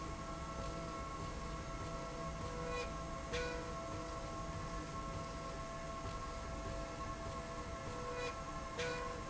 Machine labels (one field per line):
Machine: slide rail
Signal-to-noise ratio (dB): 0 dB